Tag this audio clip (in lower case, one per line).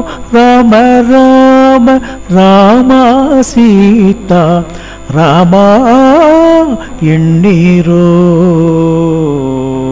mantra